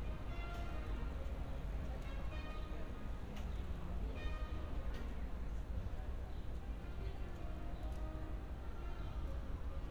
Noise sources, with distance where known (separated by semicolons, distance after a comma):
music from an unclear source, far